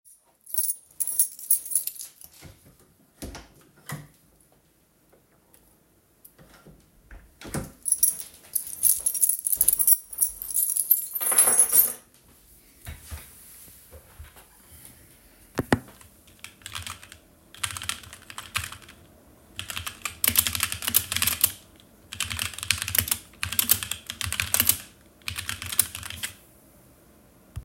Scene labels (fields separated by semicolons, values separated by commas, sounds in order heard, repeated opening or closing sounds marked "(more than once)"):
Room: living room, bedroom; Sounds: keys, door (more than once), footsteps, keyboard typing